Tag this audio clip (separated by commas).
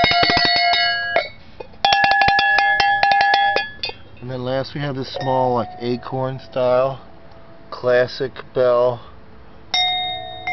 Cowbell